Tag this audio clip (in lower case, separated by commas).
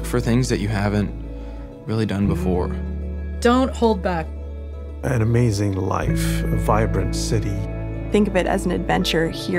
music, speech